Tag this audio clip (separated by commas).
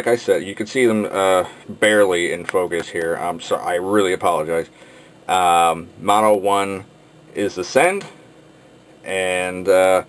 Speech